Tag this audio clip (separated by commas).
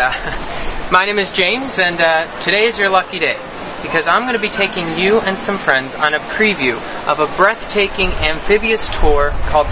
Speech